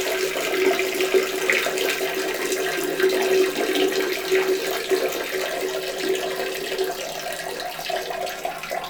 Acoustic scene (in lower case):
restroom